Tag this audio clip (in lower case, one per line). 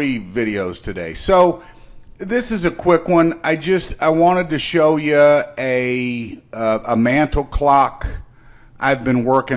speech